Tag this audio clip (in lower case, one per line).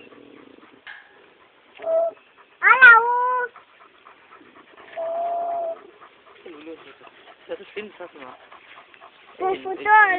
speech